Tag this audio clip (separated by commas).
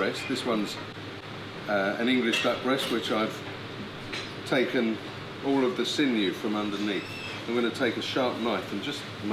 Music, Speech